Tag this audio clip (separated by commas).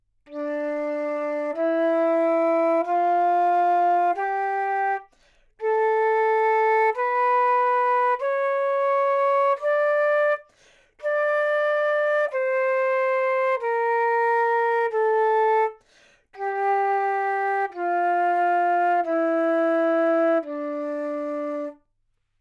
Musical instrument, woodwind instrument, Music